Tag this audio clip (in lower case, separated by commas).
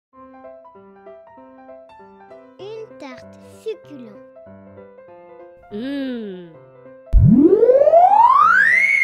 kid speaking, music